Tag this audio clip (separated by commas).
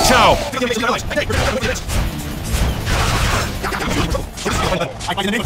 Speech, Music